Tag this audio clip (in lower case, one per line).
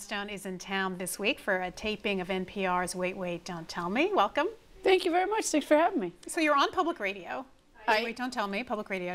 speech